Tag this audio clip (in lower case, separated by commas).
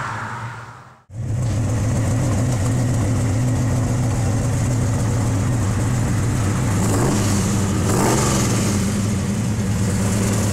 car, vehicle, motor vehicle (road)